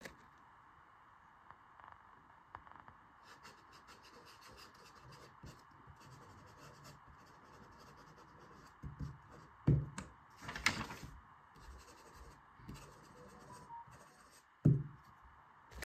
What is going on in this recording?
I was writing in my notebook, swipped the page and got a notification on my mobile phone